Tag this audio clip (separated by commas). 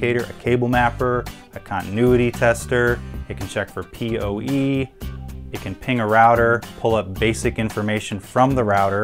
Music, Speech